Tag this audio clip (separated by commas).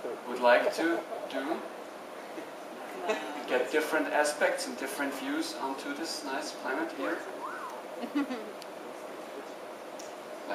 Speech